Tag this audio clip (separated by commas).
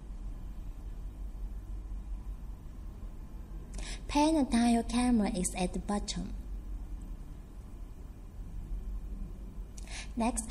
Speech